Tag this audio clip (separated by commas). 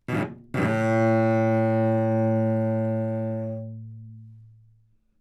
Musical instrument, Bowed string instrument, Music